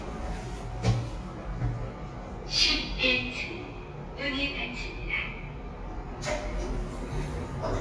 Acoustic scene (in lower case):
elevator